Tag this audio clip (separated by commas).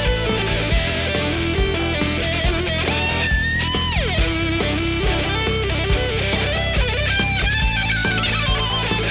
Musical instrument, fiddle, Music